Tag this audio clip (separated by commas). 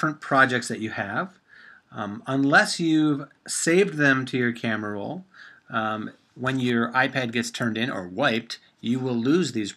Speech